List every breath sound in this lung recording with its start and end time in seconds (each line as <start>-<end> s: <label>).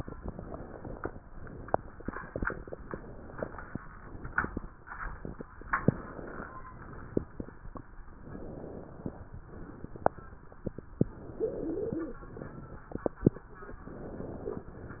0.00-1.14 s: inhalation
1.33-2.77 s: exhalation
2.79-3.84 s: inhalation
3.90-5.47 s: exhalation
5.59-6.63 s: inhalation
6.72-7.90 s: exhalation
8.12-9.17 s: inhalation
9.43-10.41 s: exhalation
11.02-12.22 s: inhalation
11.36-12.22 s: stridor
12.31-13.41 s: exhalation
13.83-14.68 s: inhalation
14.68-15.00 s: exhalation